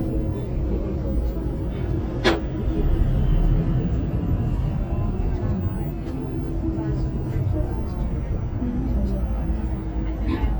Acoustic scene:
bus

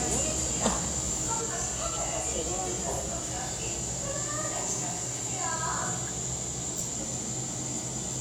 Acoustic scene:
cafe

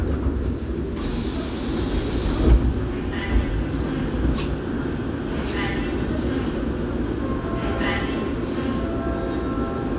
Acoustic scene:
subway train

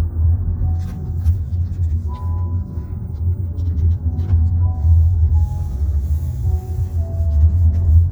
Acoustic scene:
car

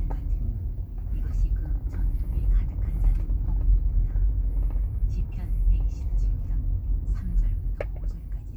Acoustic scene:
car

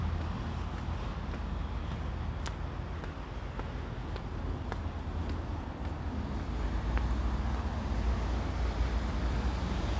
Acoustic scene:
residential area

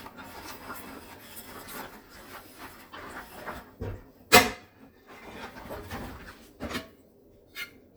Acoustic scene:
kitchen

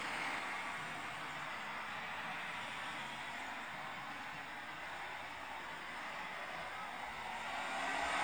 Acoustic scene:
street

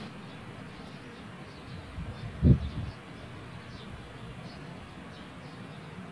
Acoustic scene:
park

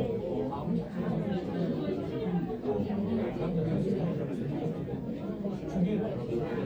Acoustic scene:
crowded indoor space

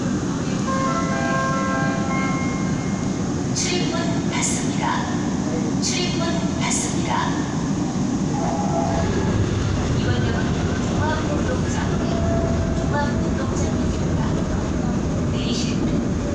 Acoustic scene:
subway train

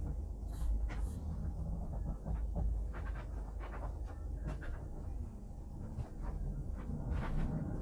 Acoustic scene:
bus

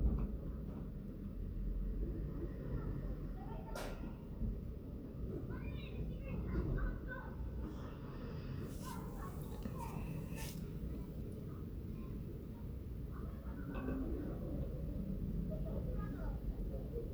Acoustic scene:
residential area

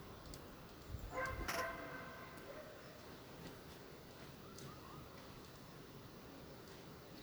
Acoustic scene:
park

